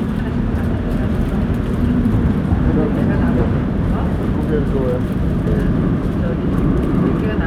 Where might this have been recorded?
on a subway train